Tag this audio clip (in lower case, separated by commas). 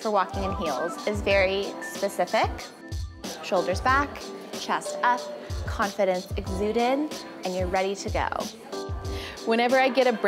speech, music